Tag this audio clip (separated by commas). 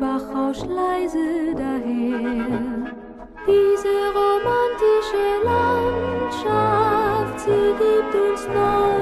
Music